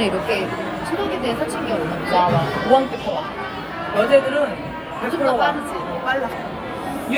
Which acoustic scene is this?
crowded indoor space